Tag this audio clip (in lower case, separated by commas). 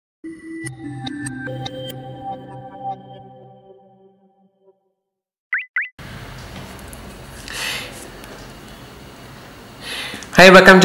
inside a small room, music